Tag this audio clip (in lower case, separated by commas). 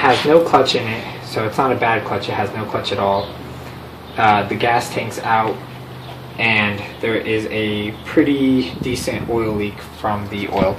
inside a small room, vehicle, speech